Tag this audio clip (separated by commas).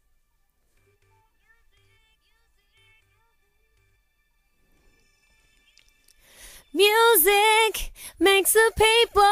Music